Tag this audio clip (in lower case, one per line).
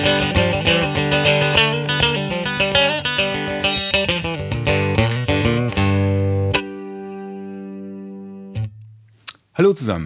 strum
speech
guitar
music
blues
musical instrument
plucked string instrument